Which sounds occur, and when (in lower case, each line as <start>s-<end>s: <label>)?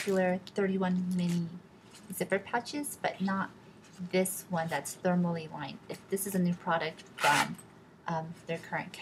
0.0s-0.2s: generic impact sounds
0.0s-1.5s: woman speaking
0.0s-9.0s: mechanisms
1.2s-1.4s: generic impact sounds
1.8s-2.1s: generic impact sounds
2.0s-3.4s: woman speaking
3.8s-4.0s: generic impact sounds
3.9s-5.7s: woman speaking
5.9s-7.0s: woman speaking
7.2s-7.6s: zipper (clothing)
8.0s-9.0s: woman speaking